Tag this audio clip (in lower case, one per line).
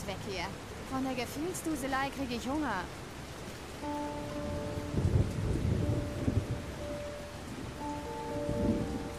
rain
thunderstorm